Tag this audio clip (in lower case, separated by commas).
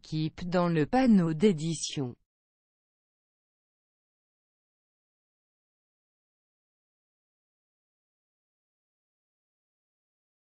extending ladders